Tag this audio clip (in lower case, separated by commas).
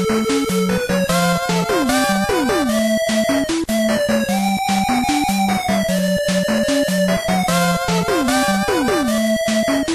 music, video game music